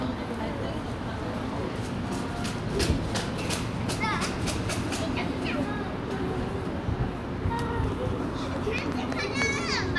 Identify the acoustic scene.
park